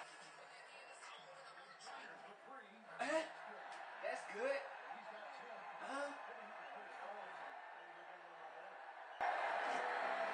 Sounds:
Speech

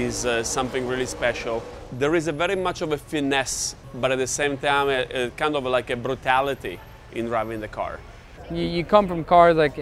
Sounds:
Vehicle, Motor vehicle (road), Speech

